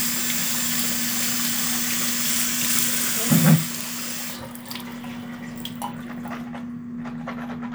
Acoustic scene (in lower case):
restroom